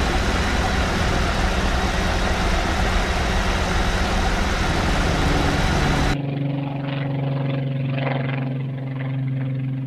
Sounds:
vehicle
aircraft engine
outside, urban or man-made
engine

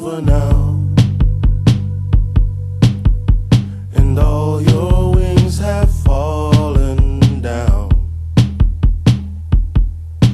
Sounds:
music
sampler
singing

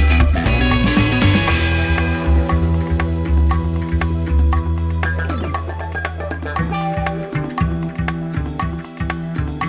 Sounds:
music

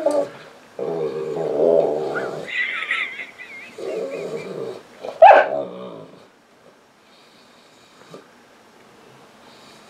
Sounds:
dog whimpering

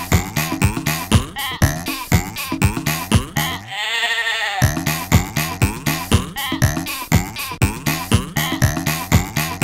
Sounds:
bleat
music

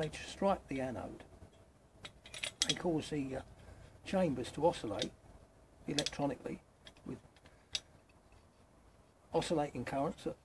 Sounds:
speech

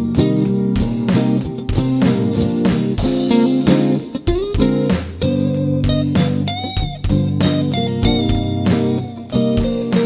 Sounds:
drum kit
electric guitar
music
musical instrument
bass guitar
guitar
bass drum
plucked string instrument
drum

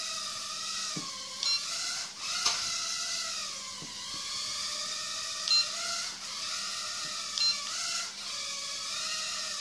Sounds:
inside a small room

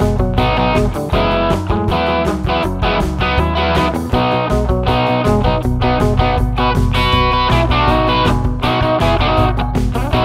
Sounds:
musical instrument
guitar
music
plucked string instrument
strum
electric guitar

